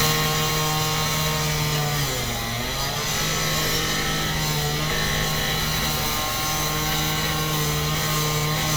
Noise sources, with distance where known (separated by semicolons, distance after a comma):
chainsaw, near